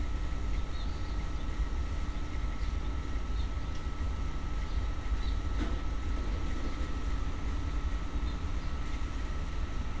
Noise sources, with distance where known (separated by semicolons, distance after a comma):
engine of unclear size, far